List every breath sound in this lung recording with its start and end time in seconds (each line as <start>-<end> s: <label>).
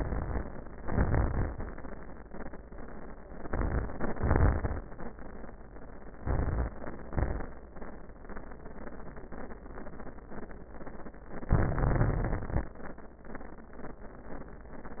0.00-0.56 s: inhalation
0.00-0.56 s: crackles
0.77-1.56 s: exhalation
0.77-1.56 s: crackles
3.44-4.18 s: inhalation
3.44-4.18 s: crackles
4.21-4.95 s: exhalation
4.21-4.95 s: crackles
6.18-6.92 s: inhalation
6.18-6.92 s: crackles
7.11-7.70 s: exhalation
7.11-7.70 s: crackles
11.46-12.77 s: inhalation
11.46-12.77 s: crackles